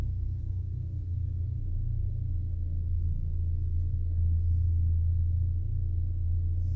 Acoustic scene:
car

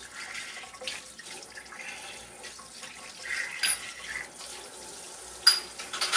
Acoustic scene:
kitchen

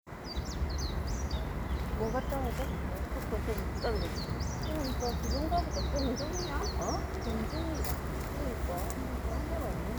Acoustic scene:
park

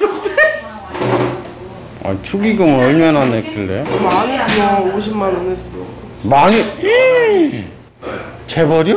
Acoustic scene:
crowded indoor space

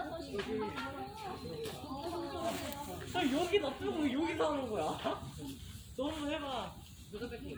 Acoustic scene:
park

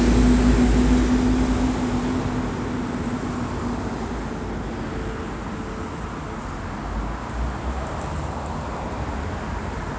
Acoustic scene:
street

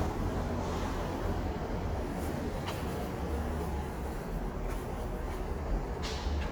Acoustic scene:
subway station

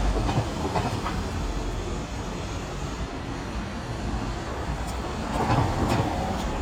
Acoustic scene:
residential area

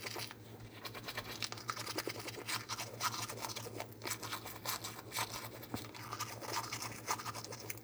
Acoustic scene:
restroom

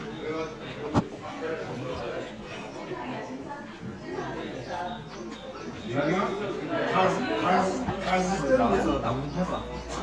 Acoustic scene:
crowded indoor space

